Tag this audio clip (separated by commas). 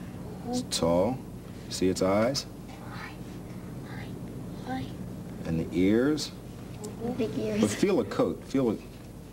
Speech